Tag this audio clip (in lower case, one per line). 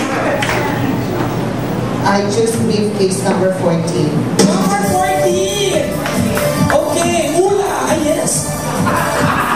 music
inside a large room or hall
speech